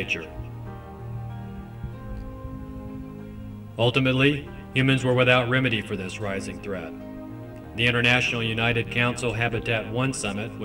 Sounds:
Music, Speech

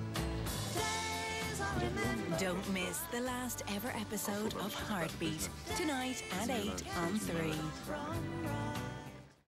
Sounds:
Music, Speech

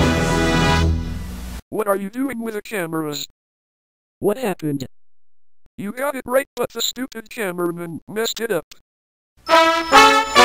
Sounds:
Music, Speech, Television

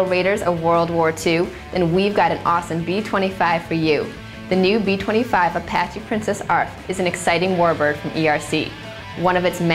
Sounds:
Speech, Music

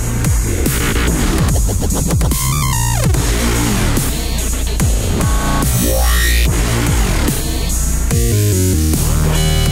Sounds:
Dubstep, Music, Electronic music

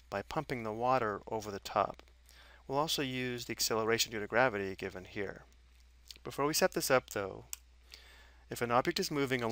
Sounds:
Speech

